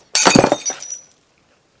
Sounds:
Shatter, Glass

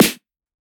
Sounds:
Music, Drum, Percussion, Musical instrument, Snare drum

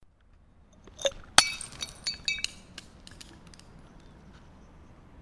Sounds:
Glass, Shatter, Crushing

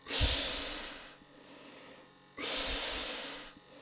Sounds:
Breathing, Hiss, Respiratory sounds

